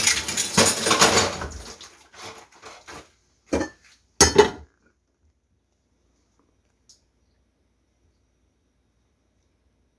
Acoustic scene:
kitchen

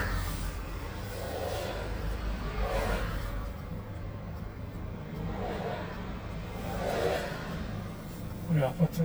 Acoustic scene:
car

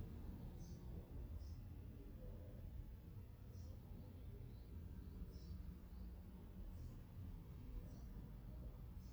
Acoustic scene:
residential area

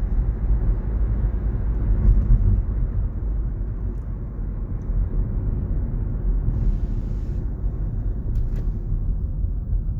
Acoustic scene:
car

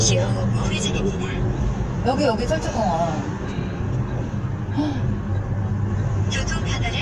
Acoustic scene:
car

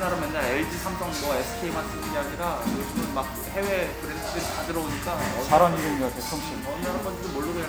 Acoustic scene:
restaurant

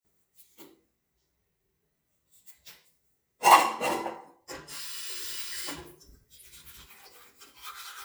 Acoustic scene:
restroom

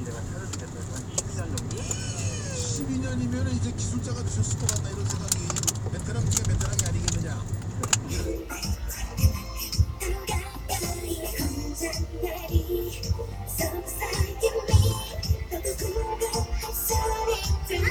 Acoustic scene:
car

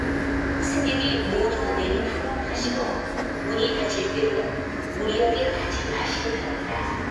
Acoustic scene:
subway station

